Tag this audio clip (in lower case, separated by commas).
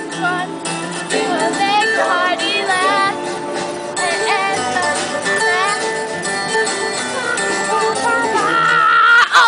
music, female singing